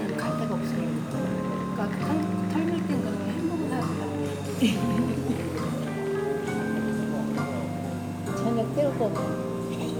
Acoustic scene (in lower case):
cafe